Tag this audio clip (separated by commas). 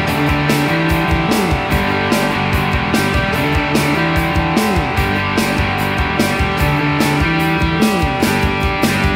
Progressive rock